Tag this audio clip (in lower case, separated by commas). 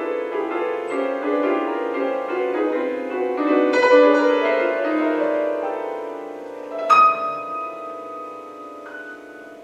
music, soul music